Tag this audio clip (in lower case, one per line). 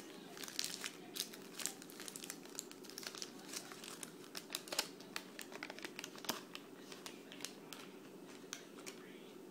inside a small room
crinkling